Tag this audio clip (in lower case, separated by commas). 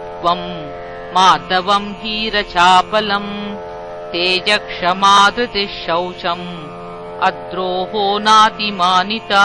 music, mantra